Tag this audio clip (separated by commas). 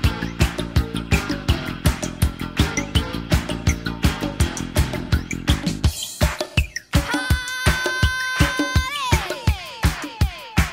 Music